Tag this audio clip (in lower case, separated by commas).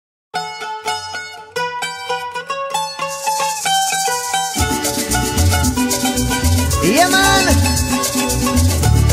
salsa music, music, mandolin